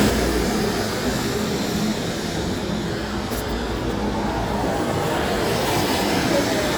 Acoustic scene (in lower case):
street